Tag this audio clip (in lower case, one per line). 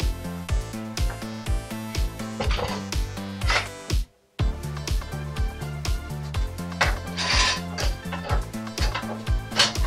inside a small room
music